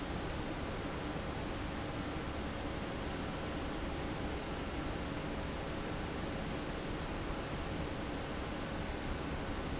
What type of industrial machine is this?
fan